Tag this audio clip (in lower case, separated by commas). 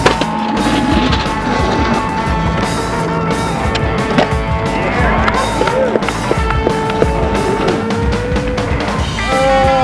skateboard, music